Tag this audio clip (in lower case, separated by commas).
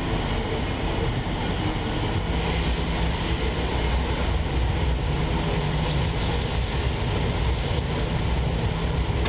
vehicle